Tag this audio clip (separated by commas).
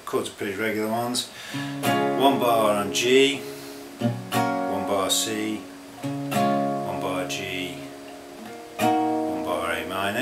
Speech, Music